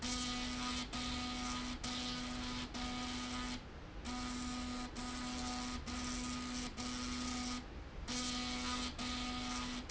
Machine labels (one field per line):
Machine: slide rail